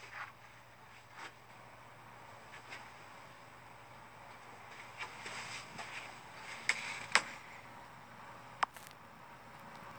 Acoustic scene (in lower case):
elevator